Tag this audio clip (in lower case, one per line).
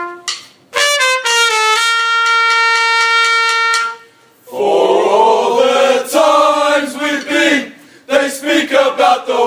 music